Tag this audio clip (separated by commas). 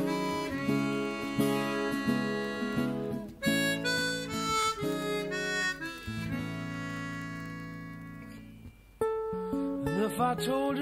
playing harmonica